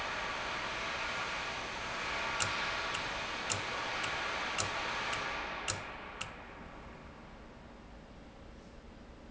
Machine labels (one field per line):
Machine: valve